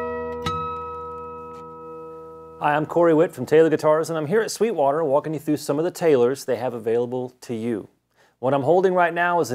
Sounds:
Music, Speech

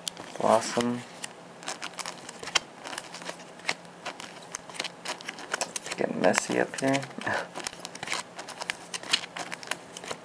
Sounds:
Speech, inside a small room

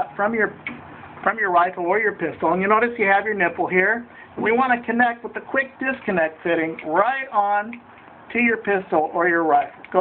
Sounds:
Speech

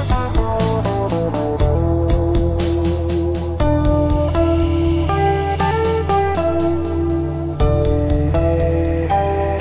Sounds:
Plucked string instrument, Acoustic guitar, Strum, Music, Musical instrument, Guitar

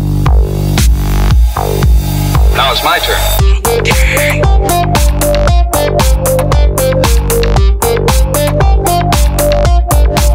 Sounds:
Music, Speech

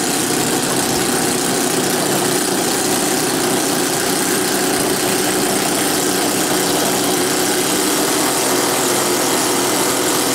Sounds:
Vehicle

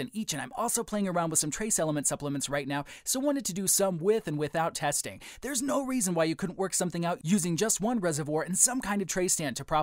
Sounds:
Speech

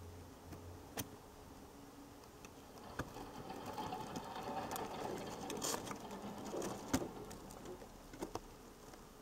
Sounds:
Vehicle, Truck

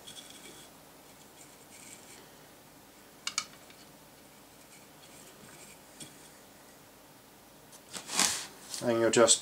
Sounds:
Speech, inside a small room

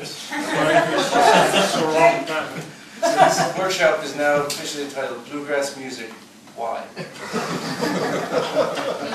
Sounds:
Speech

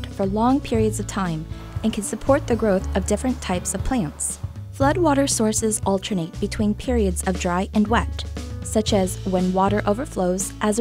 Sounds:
mosquito buzzing

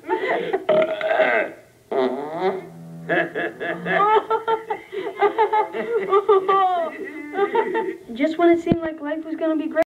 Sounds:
people farting, Fart

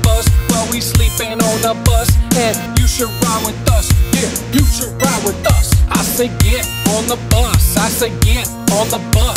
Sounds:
Music

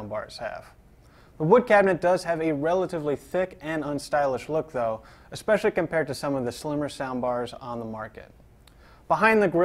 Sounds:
Speech

